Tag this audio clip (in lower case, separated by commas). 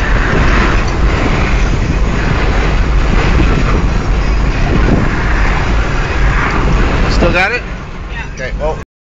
speech